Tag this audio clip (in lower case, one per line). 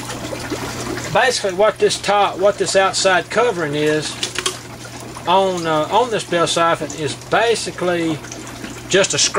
speech